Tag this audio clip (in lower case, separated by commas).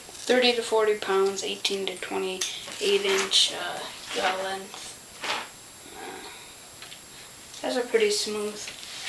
inside a small room, speech